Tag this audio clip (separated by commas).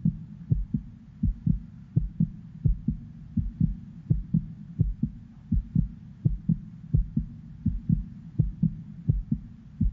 Throbbing